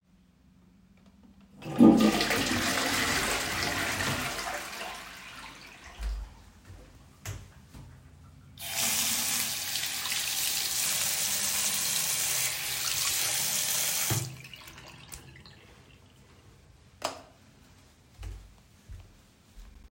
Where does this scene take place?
bathroom